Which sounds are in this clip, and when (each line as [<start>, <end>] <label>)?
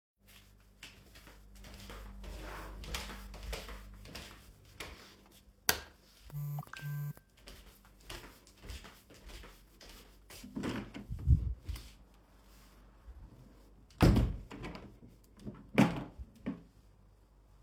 [0.32, 5.47] footsteps
[5.60, 5.88] light switch
[6.22, 7.65] phone ringing
[6.50, 10.59] footsteps
[10.55, 11.89] window
[13.84, 16.64] window